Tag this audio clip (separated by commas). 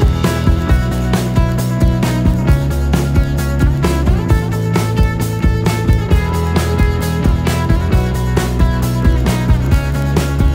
Music